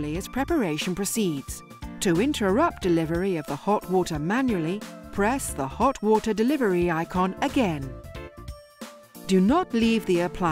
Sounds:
Music, Speech

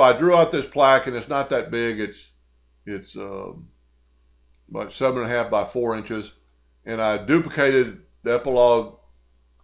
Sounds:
Speech

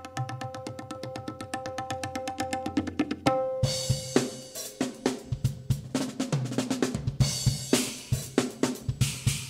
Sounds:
playing cymbal, Percussion, Drum, Cymbal, Hi-hat, Tabla

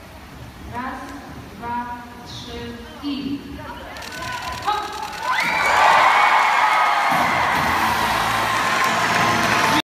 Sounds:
Slosh, Speech, Music, Water

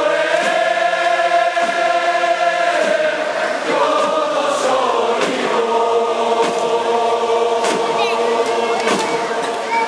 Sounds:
Speech, Mantra

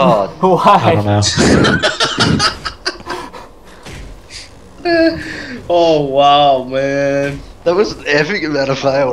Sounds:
Speech

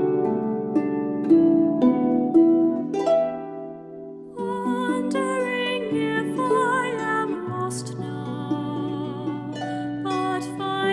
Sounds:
Music, Singing, playing harp, Harp, Musical instrument

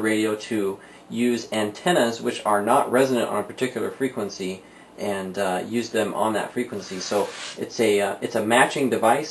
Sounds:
Speech

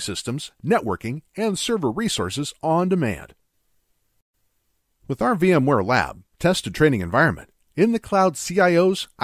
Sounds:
Narration, Speech

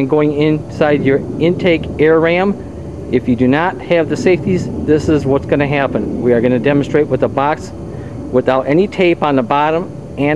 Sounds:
Speech

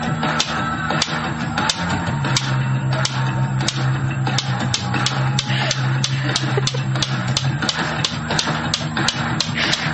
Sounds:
Music

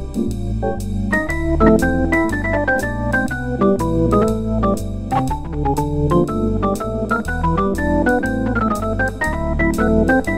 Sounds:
Keyboard (musical), Music, Musical instrument, Synthesizer, Piano, Organ

